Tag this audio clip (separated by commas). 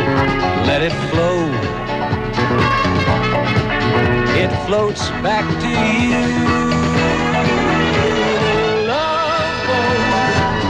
Music